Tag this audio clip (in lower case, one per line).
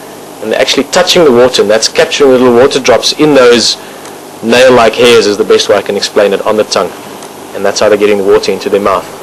speech